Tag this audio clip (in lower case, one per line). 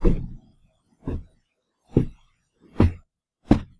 walk